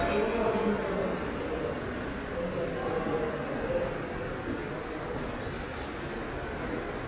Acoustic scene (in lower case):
subway station